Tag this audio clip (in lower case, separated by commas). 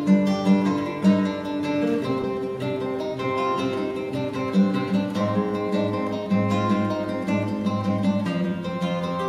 music, musical instrument, guitar, plucked string instrument, acoustic guitar, strum